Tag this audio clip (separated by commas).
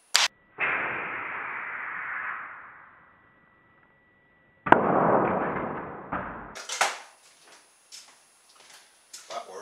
Speech